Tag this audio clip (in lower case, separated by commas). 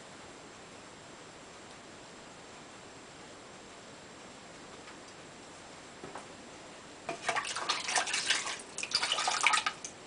inside a small room